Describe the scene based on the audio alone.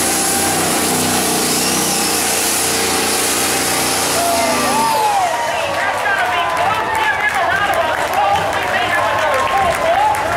A truck passes by as the crowd claps and cheers excitedly